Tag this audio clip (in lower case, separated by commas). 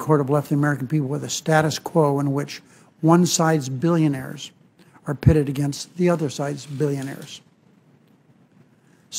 speech